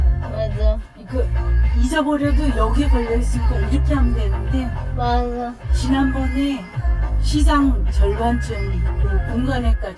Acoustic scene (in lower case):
car